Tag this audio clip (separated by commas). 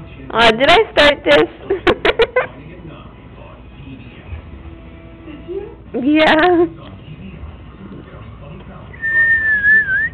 Speech, Music